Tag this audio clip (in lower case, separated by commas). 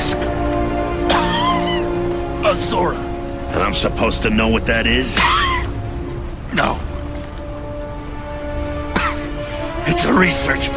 music, speech